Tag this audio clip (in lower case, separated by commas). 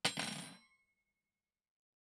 cutlery, home sounds